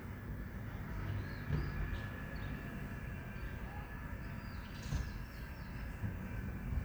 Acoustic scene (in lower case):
residential area